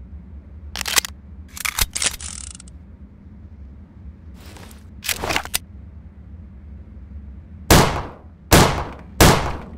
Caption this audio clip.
Cocking of a guns' mechanism followed by four shots